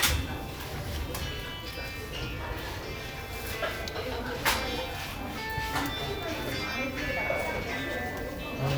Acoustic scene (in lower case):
restaurant